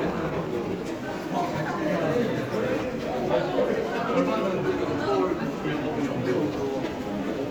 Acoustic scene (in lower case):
crowded indoor space